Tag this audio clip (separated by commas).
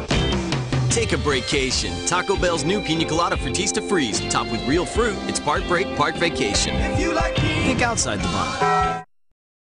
Speech, Music